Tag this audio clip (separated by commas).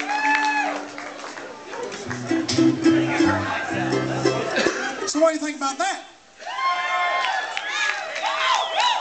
Speech, Music